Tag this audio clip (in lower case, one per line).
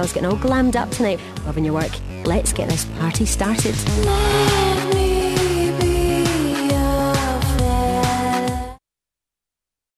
speech
music